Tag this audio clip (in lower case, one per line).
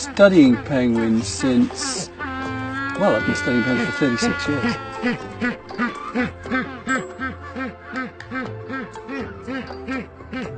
penguins braying